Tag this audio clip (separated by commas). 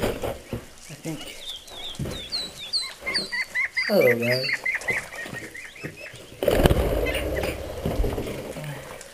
pheasant crowing